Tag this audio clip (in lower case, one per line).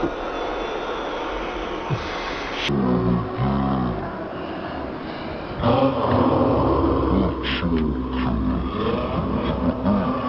speech